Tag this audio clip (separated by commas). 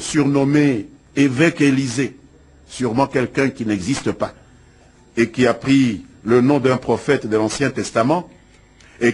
Speech